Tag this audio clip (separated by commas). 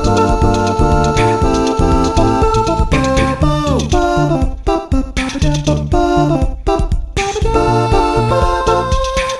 Music